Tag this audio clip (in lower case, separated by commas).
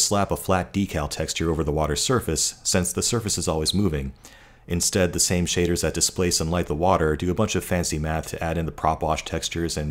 speech